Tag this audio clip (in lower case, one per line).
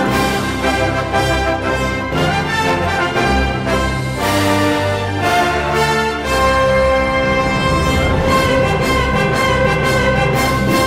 music